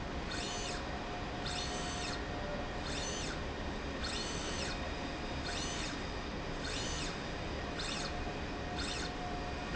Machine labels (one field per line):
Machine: slide rail